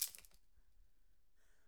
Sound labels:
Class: object falling